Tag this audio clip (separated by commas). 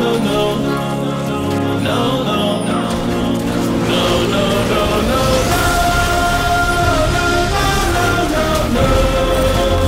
Music